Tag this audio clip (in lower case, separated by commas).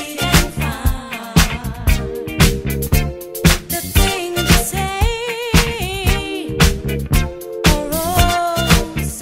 funk, music, disco